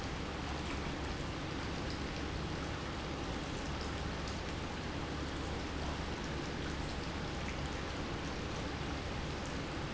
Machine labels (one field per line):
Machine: pump